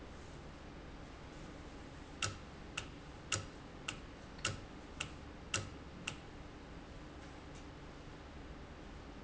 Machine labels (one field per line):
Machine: valve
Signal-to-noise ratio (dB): 6 dB